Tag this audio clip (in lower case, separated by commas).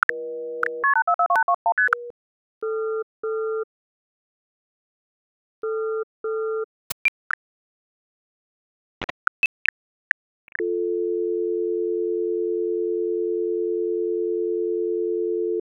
telephone, alarm